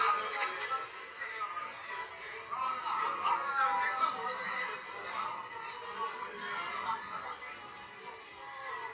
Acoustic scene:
restaurant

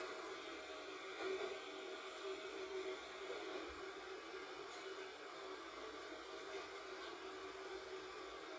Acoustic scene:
subway train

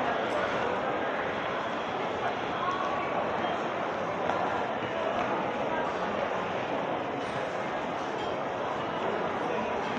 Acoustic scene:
crowded indoor space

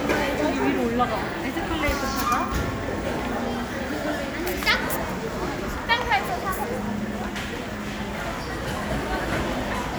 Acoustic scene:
crowded indoor space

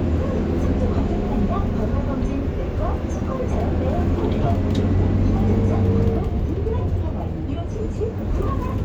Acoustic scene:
bus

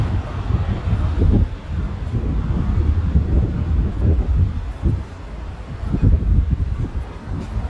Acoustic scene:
residential area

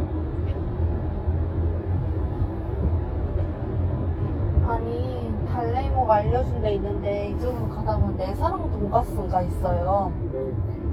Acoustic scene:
car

